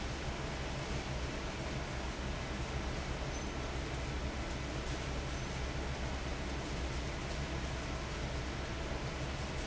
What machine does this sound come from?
fan